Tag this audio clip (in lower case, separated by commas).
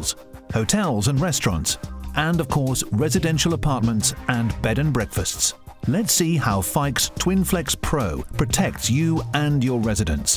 music, speech